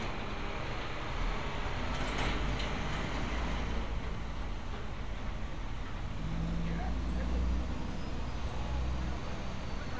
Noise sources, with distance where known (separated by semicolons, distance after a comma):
engine of unclear size